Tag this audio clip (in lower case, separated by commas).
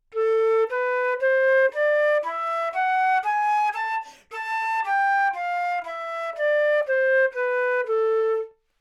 musical instrument, music, wind instrument